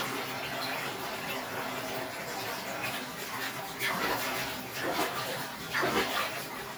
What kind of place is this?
restroom